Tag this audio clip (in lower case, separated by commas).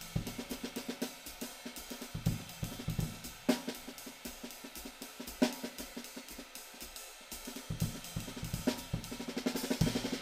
drum kit, music, hi-hat, cymbal, drum, musical instrument, snare drum